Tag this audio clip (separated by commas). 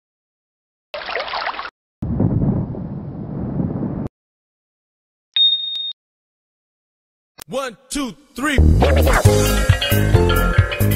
Speech, Music